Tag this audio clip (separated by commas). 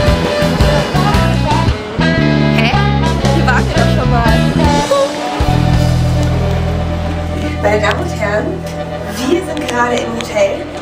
Music, Speech